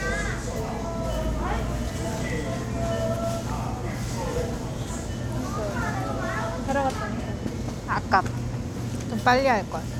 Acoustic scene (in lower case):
crowded indoor space